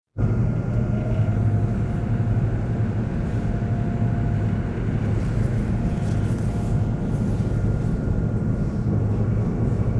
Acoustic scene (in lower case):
subway train